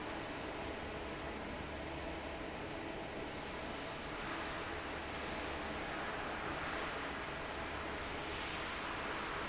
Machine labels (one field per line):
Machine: fan